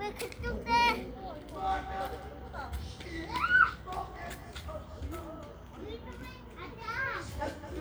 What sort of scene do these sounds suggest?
park